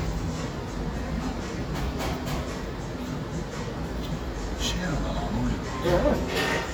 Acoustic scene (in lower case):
cafe